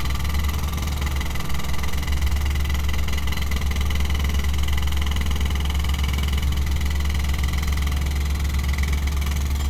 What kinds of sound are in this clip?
unidentified impact machinery